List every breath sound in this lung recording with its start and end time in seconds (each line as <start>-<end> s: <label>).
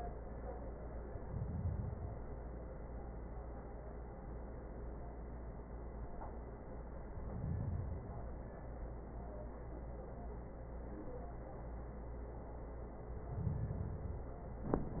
1.04-2.54 s: inhalation
7.02-8.52 s: inhalation
13.05-14.55 s: inhalation